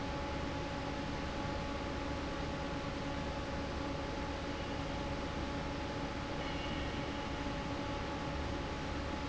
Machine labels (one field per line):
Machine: fan